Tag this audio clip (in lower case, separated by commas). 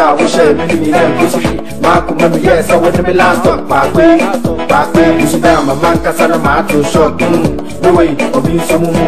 reggae, afrobeat, music